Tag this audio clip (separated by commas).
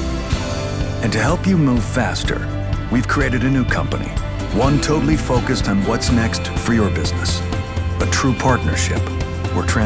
Speech, Music